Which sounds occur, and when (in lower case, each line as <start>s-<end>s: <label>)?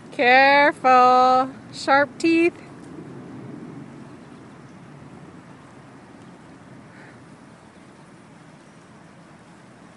0.0s-9.9s: stream
0.0s-9.9s: wind
0.1s-0.7s: woman speaking
0.8s-1.4s: woman speaking
1.7s-2.0s: woman speaking
2.2s-2.5s: woman speaking
3.9s-5.1s: tweet
5.4s-5.7s: tweet
6.2s-6.6s: tweet
6.8s-7.2s: surface contact
7.5s-8.1s: tweet
8.4s-9.0s: tweet